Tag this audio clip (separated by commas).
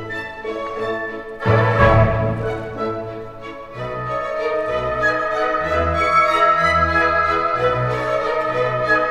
Opera